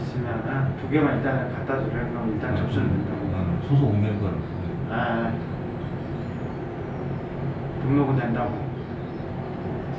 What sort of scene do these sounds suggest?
elevator